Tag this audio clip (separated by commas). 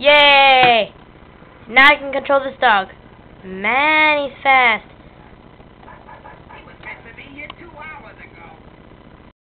Speech